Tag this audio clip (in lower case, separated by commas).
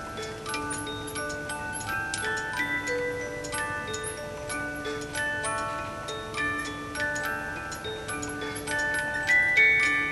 chime, wind chime